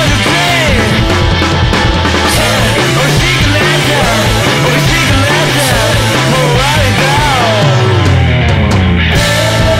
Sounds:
rock music, music

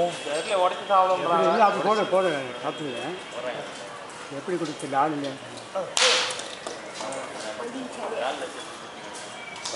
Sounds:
speech

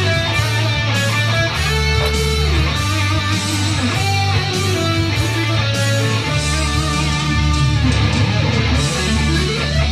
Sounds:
happy music, middle eastern music, music, musical instrument, electric guitar, guitar, plucked string instrument, playing electric guitar

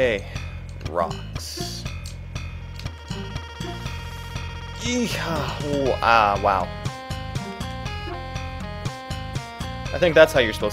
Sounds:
music, speech

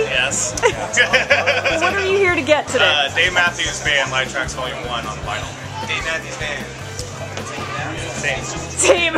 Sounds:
music, speech

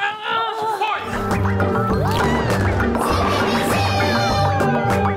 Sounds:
speech, music

